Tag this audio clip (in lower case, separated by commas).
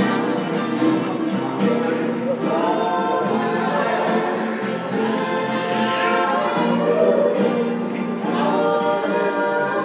music, male singing